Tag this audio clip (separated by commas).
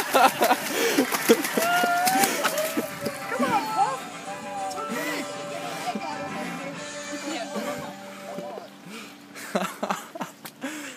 Music, Speech, Chicken